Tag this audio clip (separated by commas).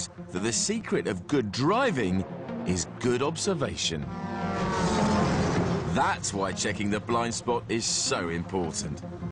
Music, Speech